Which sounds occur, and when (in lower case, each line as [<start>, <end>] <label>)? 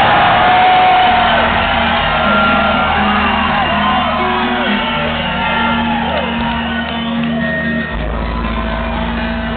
[0.00, 1.28] whoop
[0.00, 9.55] crowd
[0.00, 9.55] music
[2.07, 2.83] whoop
[3.01, 7.85] speech noise
[3.41, 4.02] man speaking
[5.31, 7.90] singing
[6.12, 6.25] clapping
[6.36, 6.49] clapping
[6.84, 6.91] clapping
[7.20, 7.26] clapping